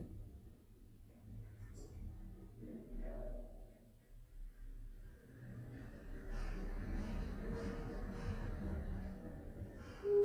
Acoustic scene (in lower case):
elevator